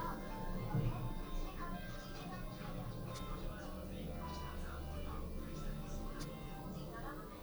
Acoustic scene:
elevator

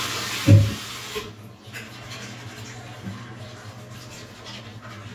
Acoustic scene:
restroom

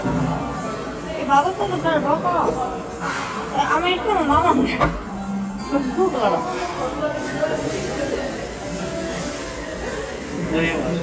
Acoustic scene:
cafe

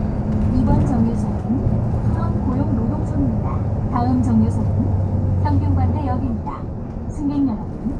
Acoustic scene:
bus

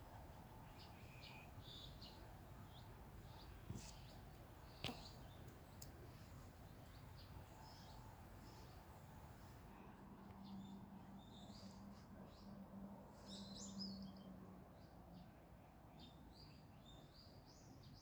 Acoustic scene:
park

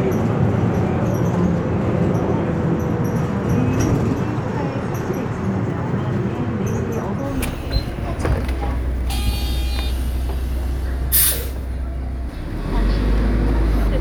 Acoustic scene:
bus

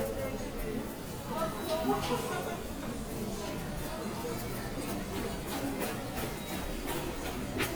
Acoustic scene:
subway station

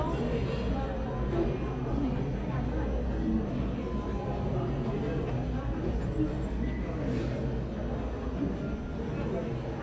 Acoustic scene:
crowded indoor space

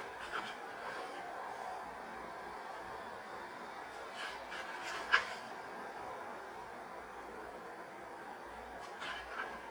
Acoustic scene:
street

